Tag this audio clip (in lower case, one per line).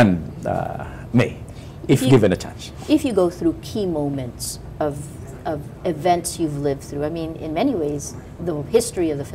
speech
inside a small room